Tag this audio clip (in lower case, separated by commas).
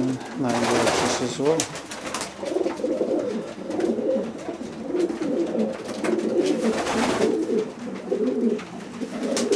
speech, coo, bird, animal